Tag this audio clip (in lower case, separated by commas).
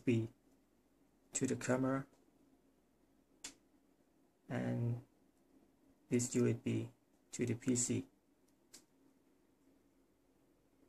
speech